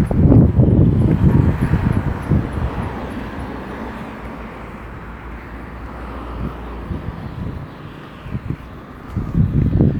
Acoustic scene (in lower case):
residential area